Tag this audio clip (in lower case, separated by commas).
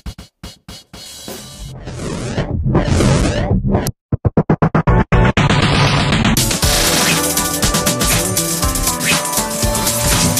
music